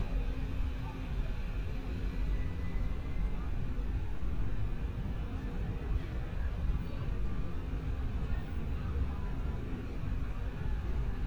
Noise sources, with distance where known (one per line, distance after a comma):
engine of unclear size
person or small group talking, far